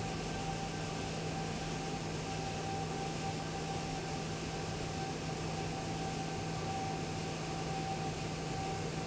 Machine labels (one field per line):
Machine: fan